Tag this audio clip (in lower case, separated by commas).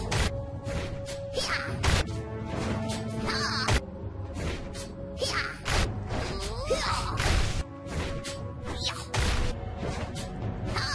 music